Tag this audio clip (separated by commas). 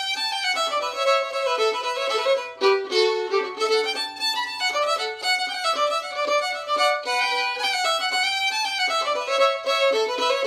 fiddle, Music, Musical instrument